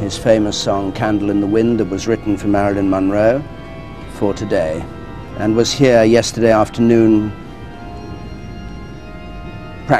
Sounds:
Music, Speech

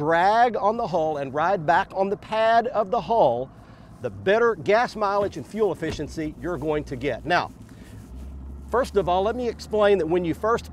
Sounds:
Engine, Vehicle, Speech

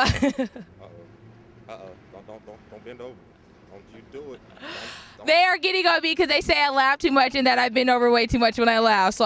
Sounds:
Speech

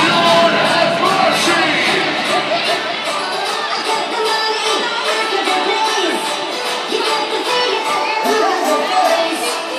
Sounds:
Speech, Music

